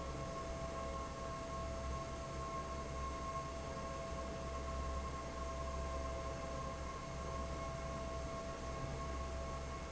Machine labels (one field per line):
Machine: fan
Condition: normal